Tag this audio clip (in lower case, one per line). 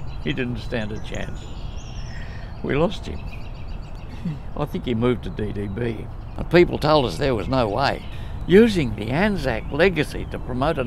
speech